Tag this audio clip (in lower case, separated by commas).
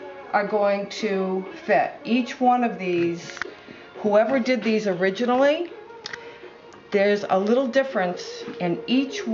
speech